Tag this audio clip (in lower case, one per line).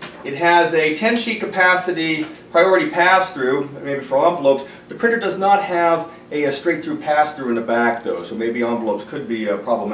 speech